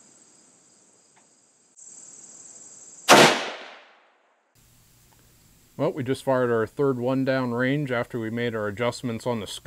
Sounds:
speech

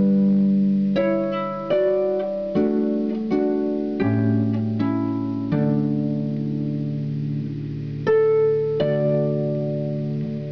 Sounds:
harp, pizzicato, playing harp

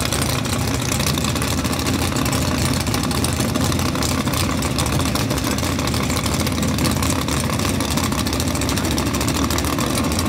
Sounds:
vehicle, car

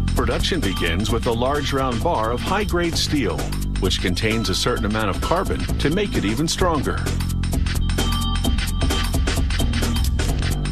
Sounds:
music, speech

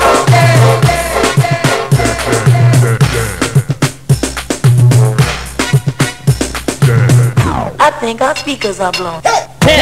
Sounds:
music, speech

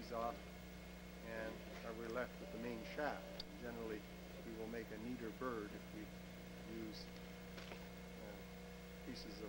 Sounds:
speech

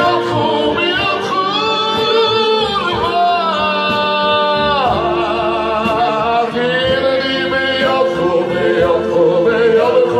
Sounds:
male singing, music

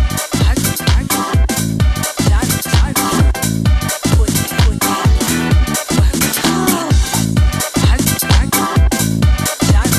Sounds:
music, sound effect

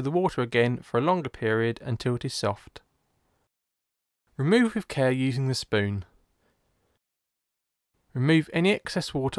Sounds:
speech

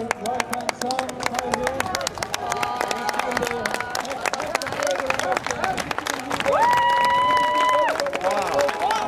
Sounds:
speech

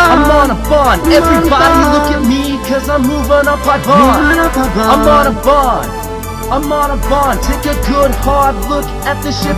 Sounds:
music

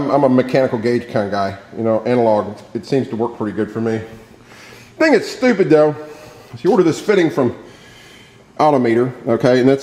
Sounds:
speech

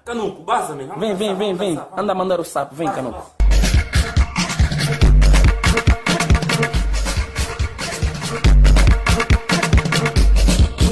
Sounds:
music, speech, music of africa

